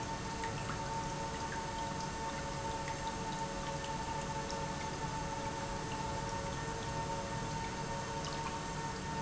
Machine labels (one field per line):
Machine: pump